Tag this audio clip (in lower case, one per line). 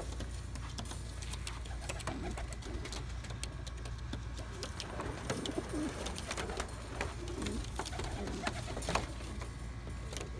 dove
bird
outside, rural or natural